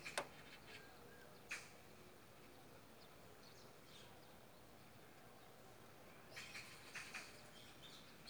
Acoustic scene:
park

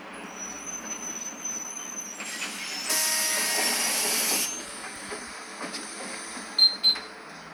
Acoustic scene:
bus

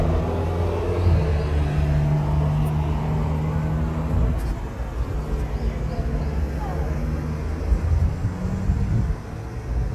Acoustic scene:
street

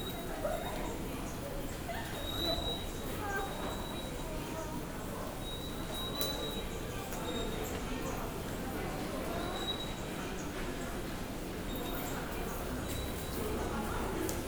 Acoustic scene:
subway station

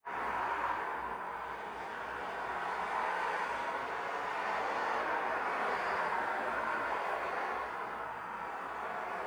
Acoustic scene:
street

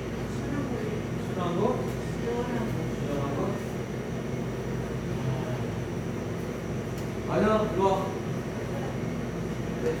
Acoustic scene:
cafe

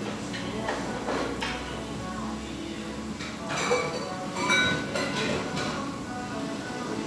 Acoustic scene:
cafe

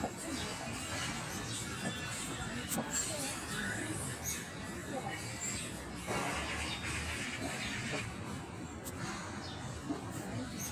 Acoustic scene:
park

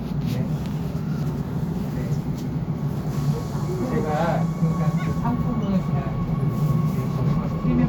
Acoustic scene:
subway train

